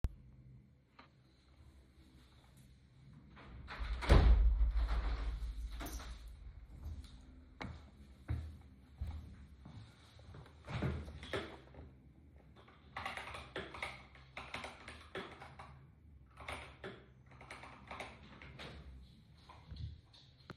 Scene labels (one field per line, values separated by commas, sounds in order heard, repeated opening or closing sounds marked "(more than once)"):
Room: office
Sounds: window, footsteps, keyboard typing